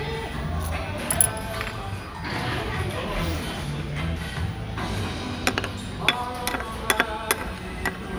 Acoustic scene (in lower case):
restaurant